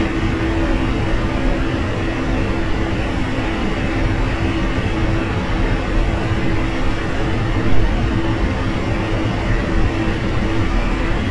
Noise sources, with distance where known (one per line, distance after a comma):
engine of unclear size, near